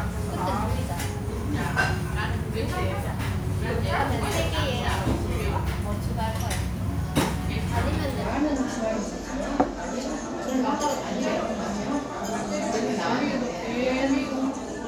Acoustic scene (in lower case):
restaurant